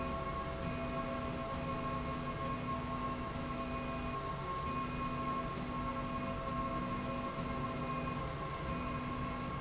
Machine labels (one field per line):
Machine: slide rail